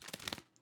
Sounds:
bird
animal
wild animals

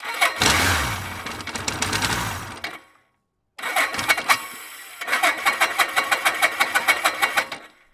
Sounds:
engine

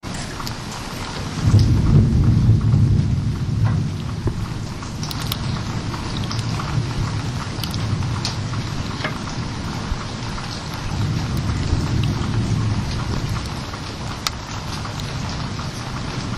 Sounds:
rain
water

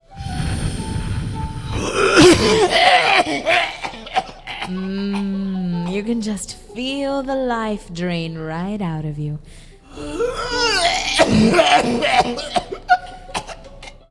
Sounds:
cough
respiratory sounds

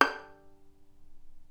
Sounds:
musical instrument
music
bowed string instrument

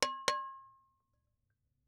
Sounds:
percussion
musical instrument
music

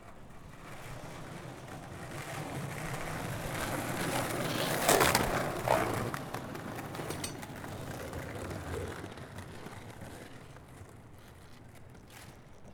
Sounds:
vehicle
skateboard

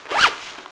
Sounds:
domestic sounds
zipper (clothing)

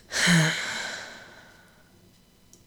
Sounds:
breathing
sigh
human voice
respiratory sounds

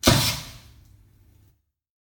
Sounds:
explosion

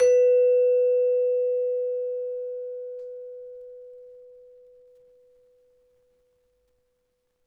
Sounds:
mallet percussion
musical instrument
music
percussion

